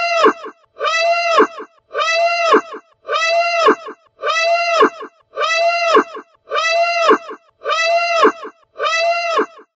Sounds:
Siren

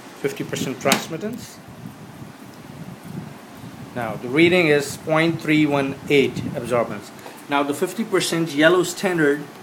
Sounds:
Speech, inside a small room

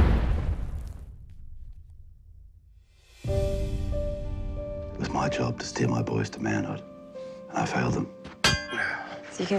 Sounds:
Speech, Music

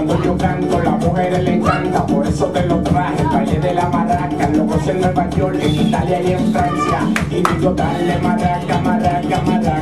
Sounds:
Song, Salsa music, Music, Maraca

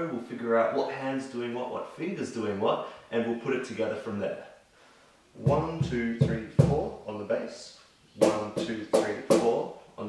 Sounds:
Speech

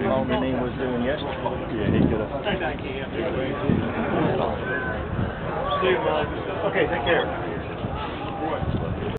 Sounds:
Speech

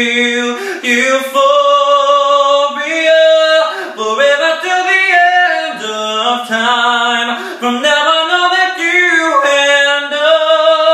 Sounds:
Male singing

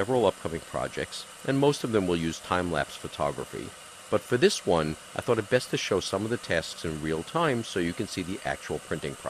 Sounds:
Speech

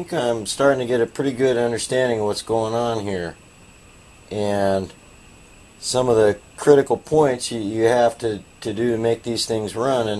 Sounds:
Speech

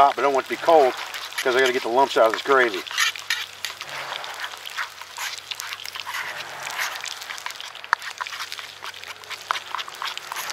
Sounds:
outside, rural or natural, Speech

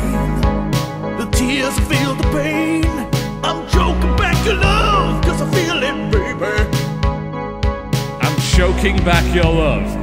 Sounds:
Music

